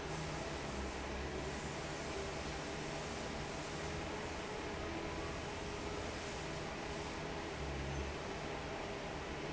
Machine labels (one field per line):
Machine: fan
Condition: normal